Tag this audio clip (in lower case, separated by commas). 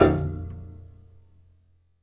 piano, musical instrument, music, keyboard (musical)